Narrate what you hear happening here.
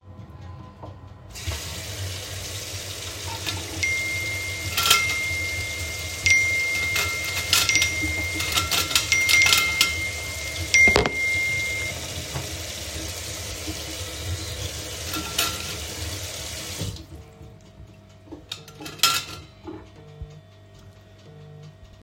I turned on the sink tap. While the water was running, I cleaned the dishes in the sink and my phone received some notifications.